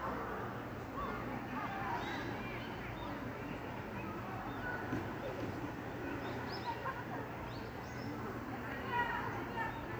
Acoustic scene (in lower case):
park